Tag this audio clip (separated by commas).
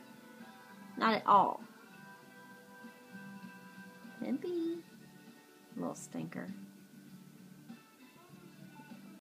Music, Speech